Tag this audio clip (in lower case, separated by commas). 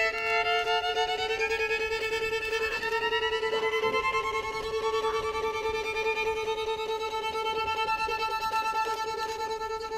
music, musical instrument, violin